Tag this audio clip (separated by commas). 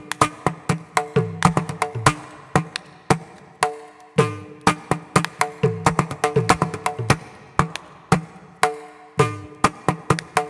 playing tabla